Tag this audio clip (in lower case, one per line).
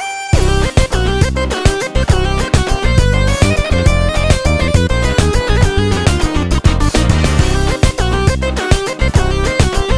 music
sampler